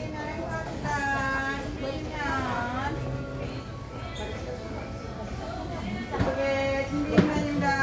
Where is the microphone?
in a crowded indoor space